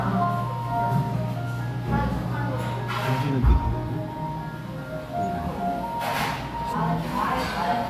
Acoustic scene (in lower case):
crowded indoor space